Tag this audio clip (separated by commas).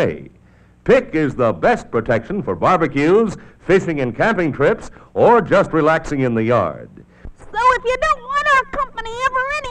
Speech